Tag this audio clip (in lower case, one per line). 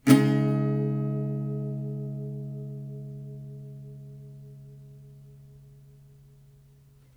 music
musical instrument
plucked string instrument
guitar
acoustic guitar
strum